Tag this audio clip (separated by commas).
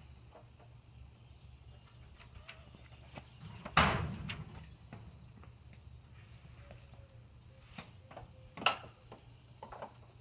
Mechanisms